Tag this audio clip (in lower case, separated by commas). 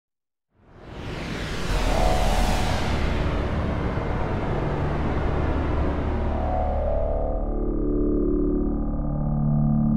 aircraft